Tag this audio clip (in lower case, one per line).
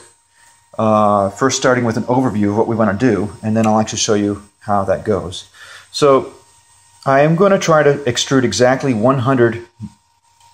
speech